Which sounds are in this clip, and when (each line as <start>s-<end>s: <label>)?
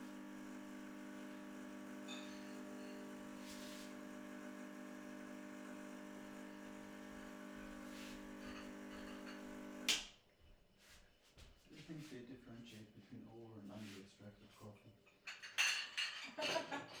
0.0s-10.5s: coffee machine
2.0s-3.4s: cutlery and dishes
8.2s-9.5s: cutlery and dishes
15.1s-17.0s: cutlery and dishes